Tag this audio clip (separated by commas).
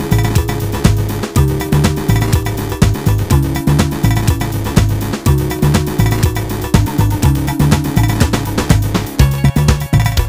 Music